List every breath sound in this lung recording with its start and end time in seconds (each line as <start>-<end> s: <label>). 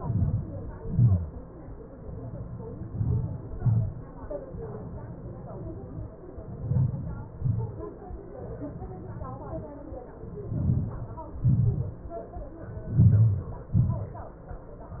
0.00-0.54 s: inhalation
0.00-0.54 s: crackles
0.86-1.27 s: exhalation
0.86-1.27 s: crackles
2.93-3.37 s: inhalation
2.93-3.37 s: crackles
3.66-4.10 s: exhalation
3.66-4.10 s: crackles
6.74-7.18 s: inhalation
6.74-7.18 s: crackles
7.48-7.80 s: exhalation
7.48-7.80 s: crackles
10.49-10.93 s: crackles
10.54-10.99 s: inhalation
11.47-11.92 s: exhalation
13.02-13.47 s: inhalation
13.02-13.47 s: crackles
13.82-14.27 s: exhalation
13.82-14.27 s: crackles